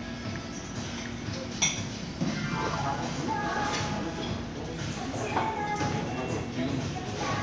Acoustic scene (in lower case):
crowded indoor space